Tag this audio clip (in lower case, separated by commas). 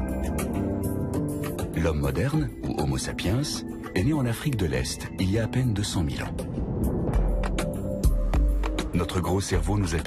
speech, music